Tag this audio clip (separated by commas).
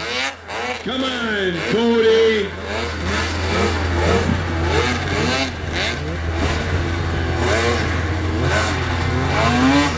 driving snowmobile